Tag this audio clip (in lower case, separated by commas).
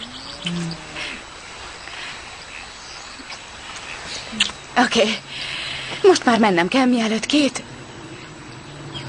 speech, bird